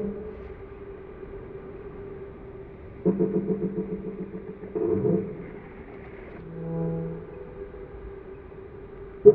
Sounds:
Sound effect, Music

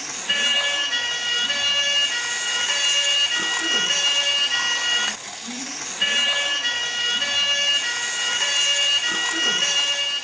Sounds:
fire truck (siren)

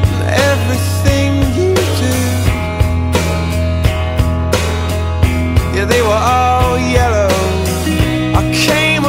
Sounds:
Music, Water vehicle

